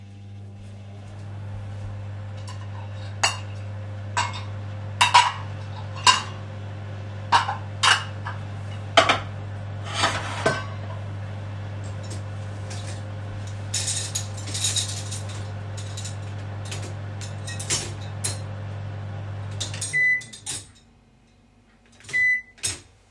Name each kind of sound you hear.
microwave, cutlery and dishes